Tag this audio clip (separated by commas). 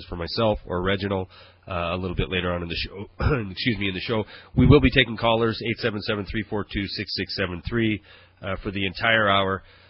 Speech